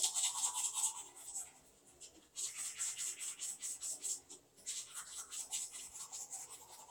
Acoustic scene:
restroom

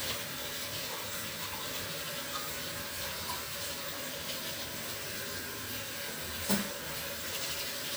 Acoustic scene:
restroom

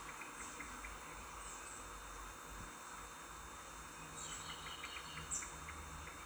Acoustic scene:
park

